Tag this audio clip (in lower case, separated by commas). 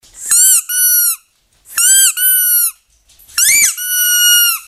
squeak